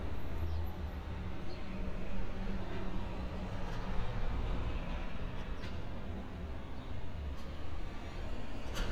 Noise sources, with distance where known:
engine of unclear size

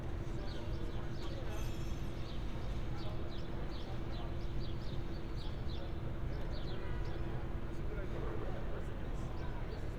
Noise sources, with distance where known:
car horn, far; person or small group talking, far

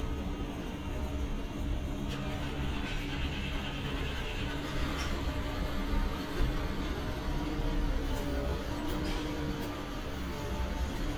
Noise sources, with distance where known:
medium-sounding engine

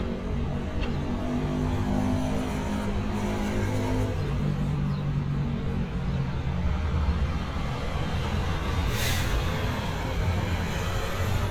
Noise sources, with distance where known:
small-sounding engine

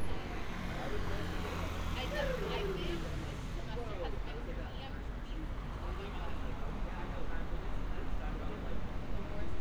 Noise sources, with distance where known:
medium-sounding engine; person or small group talking, near

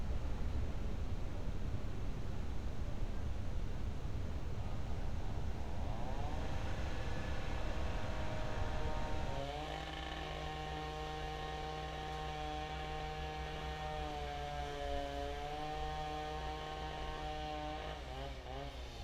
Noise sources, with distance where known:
chainsaw

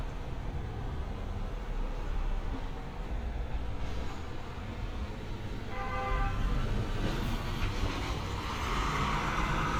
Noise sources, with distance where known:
large-sounding engine, near; car horn, near

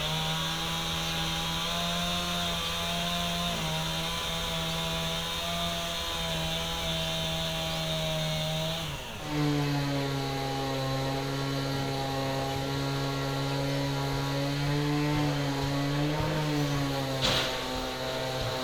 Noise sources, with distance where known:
unidentified powered saw, near

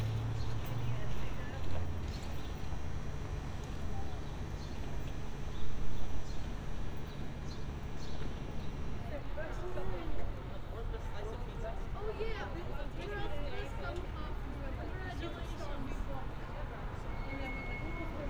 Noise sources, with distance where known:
person or small group talking

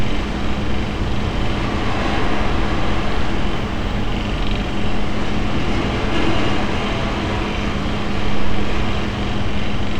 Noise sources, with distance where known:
engine of unclear size

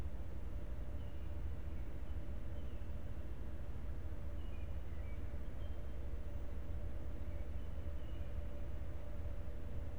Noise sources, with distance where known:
background noise

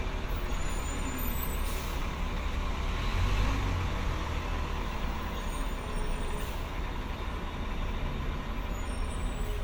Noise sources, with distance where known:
large-sounding engine, near

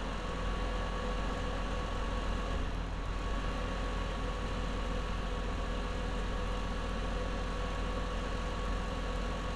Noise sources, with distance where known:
large-sounding engine, near

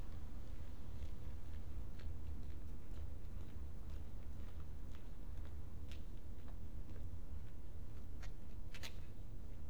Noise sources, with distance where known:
background noise

